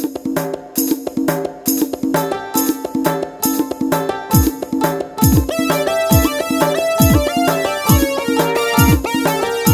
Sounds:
music

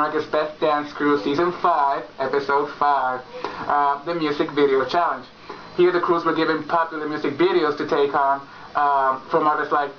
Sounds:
speech

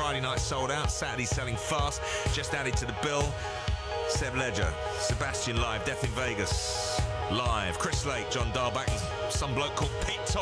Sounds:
speech
music

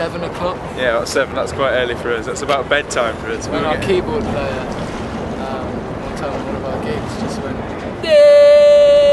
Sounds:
speech

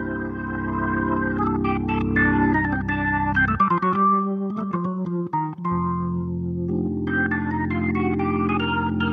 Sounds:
playing hammond organ

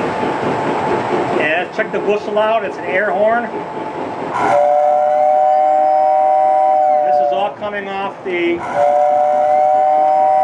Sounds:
train wagon
train
rail transport
speech

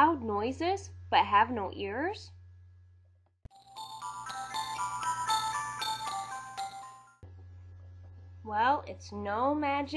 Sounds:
speech
music

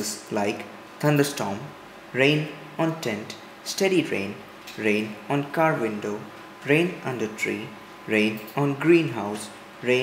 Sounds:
speech

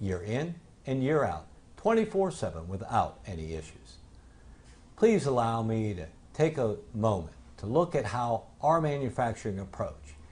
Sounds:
speech

